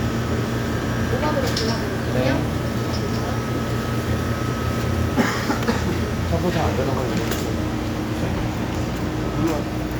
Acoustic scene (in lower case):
cafe